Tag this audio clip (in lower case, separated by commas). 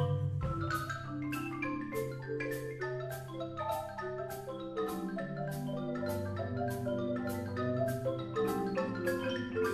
glockenspiel, mallet percussion, xylophone